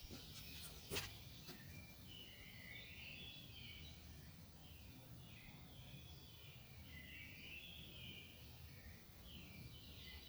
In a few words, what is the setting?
park